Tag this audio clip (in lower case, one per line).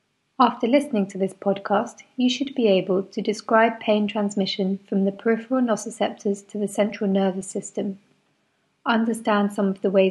speech